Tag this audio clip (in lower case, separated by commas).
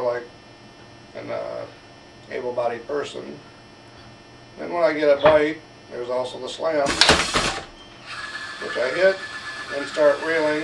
inside a small room, speech